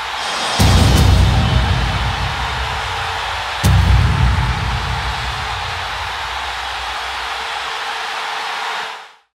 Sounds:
Music

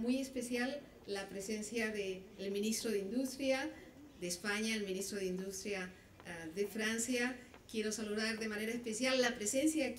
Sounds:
woman speaking, Speech, monologue

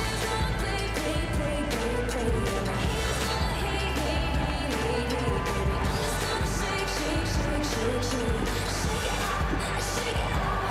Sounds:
Music

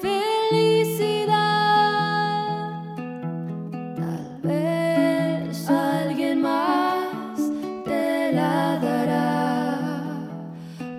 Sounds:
Music

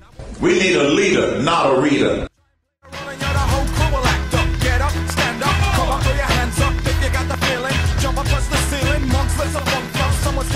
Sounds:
Music, Speech

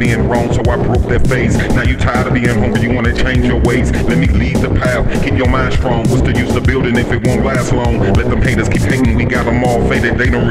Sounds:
Music

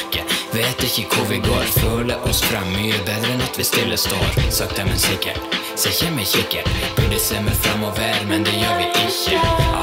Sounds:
Music

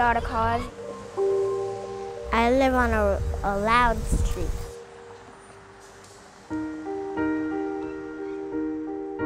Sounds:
Speech, Music

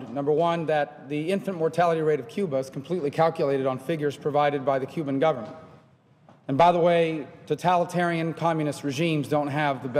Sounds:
Speech, man speaking, monologue

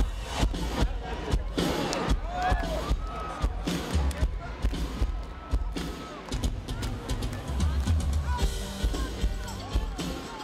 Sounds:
Music, Speech

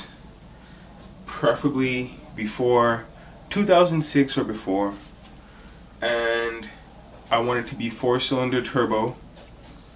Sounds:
Speech

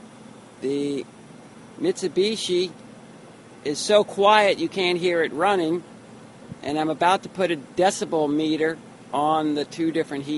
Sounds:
Speech

